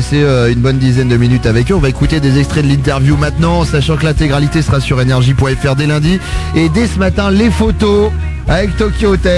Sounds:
speech, music

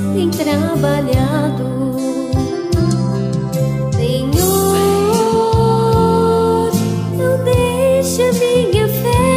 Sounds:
music, christmas music

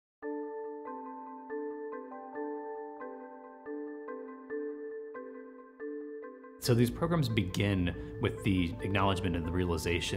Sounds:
vibraphone, speech, music

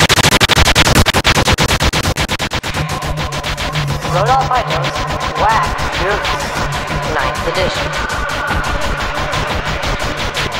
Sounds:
music, speech

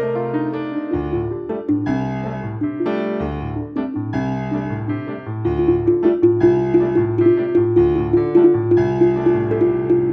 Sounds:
music, piano, drum, electric piano, percussion, playing piano, musical instrument

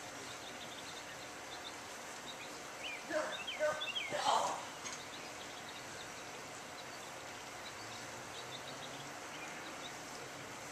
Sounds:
speech, outside, rural or natural

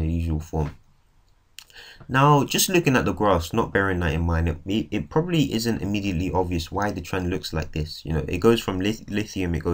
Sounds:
speech

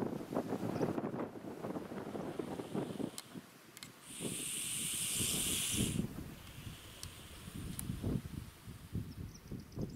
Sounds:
hiss, snake

